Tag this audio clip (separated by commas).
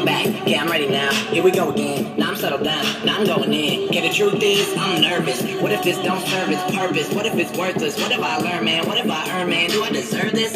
Music